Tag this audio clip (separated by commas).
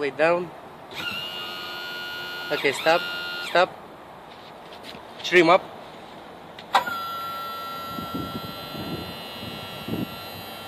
Speech, outside, urban or man-made